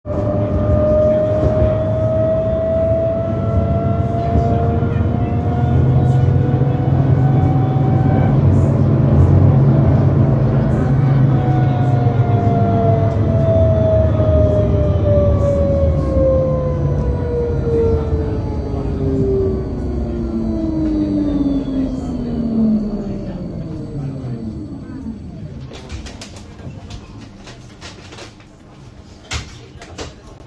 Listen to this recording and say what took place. fill my cup with water from tap put tea bag and place in microwave